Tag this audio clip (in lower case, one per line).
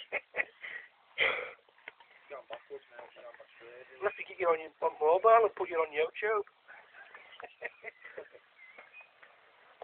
speech